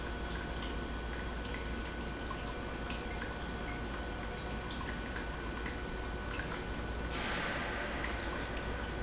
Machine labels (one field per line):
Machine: pump